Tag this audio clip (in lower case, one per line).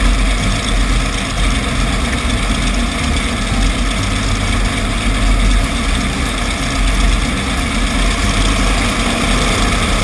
music